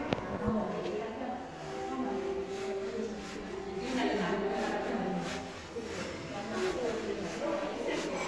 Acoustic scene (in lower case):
crowded indoor space